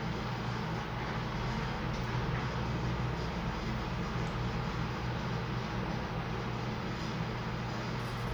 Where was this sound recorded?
in an elevator